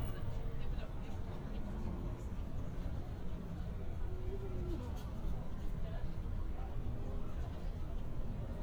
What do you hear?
person or small group talking